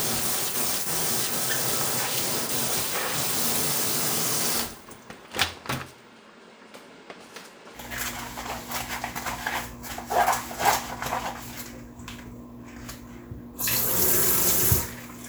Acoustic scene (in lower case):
kitchen